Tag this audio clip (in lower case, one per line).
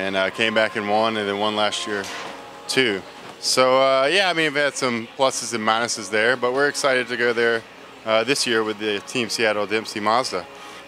speech